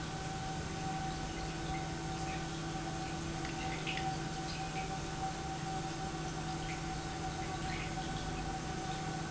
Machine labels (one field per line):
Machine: pump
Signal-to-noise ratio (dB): -6 dB